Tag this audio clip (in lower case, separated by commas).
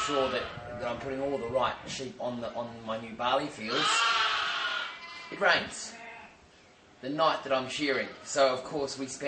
sheep, speech, bleat